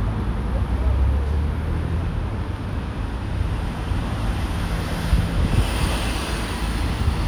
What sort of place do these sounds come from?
street